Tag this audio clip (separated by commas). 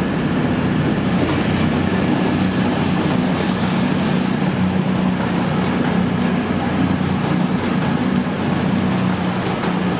Railroad car, Train, Rail transport, Subway